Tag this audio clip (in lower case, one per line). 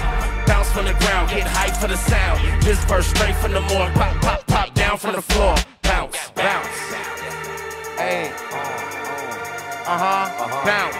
singing
rapping
hip hop music